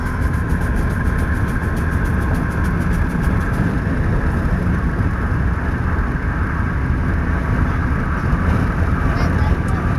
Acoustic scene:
car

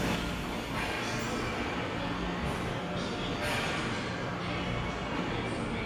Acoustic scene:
subway station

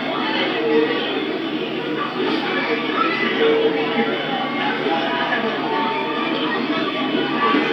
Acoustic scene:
park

